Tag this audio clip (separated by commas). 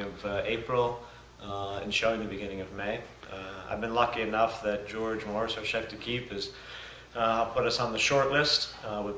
Speech